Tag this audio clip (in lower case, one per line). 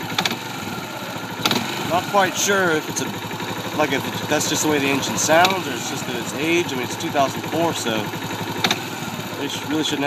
speech
engine
medium engine (mid frequency)
idling
vroom